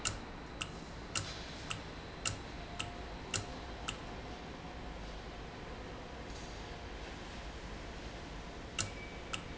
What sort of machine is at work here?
valve